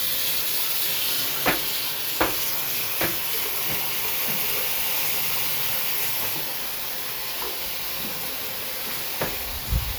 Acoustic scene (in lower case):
restroom